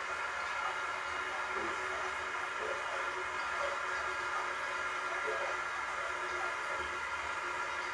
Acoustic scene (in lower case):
restroom